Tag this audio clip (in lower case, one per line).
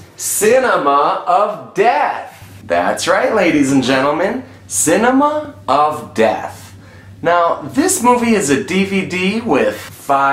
speech